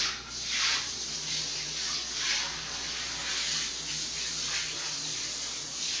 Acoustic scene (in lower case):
restroom